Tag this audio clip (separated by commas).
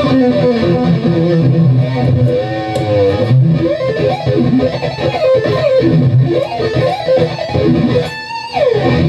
Plucked string instrument, Music, Musical instrument, Electric guitar